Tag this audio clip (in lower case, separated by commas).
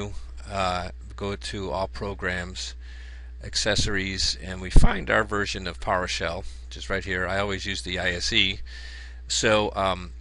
speech